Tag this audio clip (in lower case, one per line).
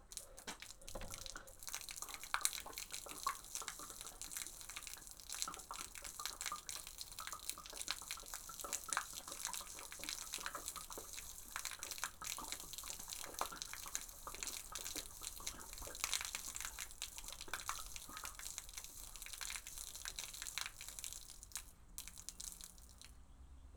water
liquid
gurgling